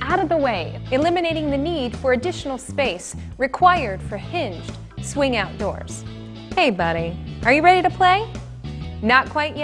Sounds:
Music, Speech

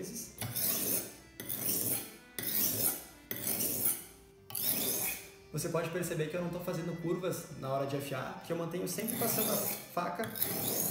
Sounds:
sharpen knife

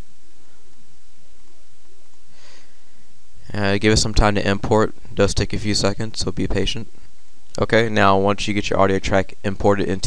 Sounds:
Speech

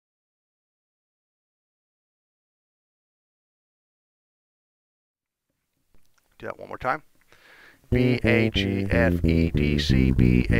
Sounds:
Electric guitar, Strum, Guitar, Speech, Musical instrument, Plucked string instrument, Music

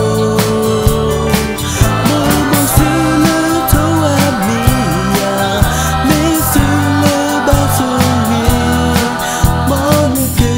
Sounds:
Music, Musical instrument, Independent music

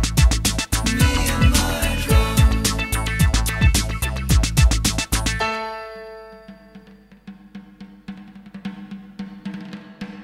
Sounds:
Timpani, Music

